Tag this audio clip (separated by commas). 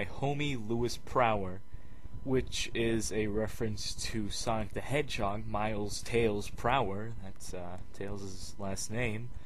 Speech